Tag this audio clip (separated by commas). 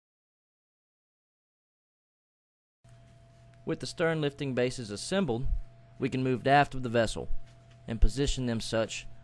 Speech